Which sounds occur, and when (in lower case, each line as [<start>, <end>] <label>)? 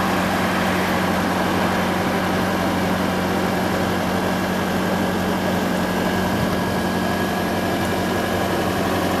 [0.00, 9.20] mechanisms